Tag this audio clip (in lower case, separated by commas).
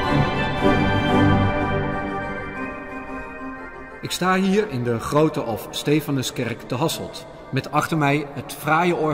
music, speech, musical instrument, piano